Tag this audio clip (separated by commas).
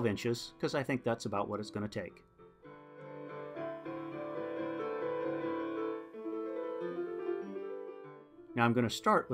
Keyboard (musical), Speech, Music